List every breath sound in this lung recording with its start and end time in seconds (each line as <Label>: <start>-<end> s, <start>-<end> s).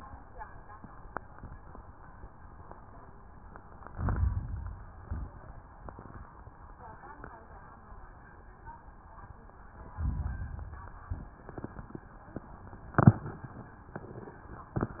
Inhalation: 3.91-4.97 s, 10.00-11.14 s
Exhalation: 4.97-5.52 s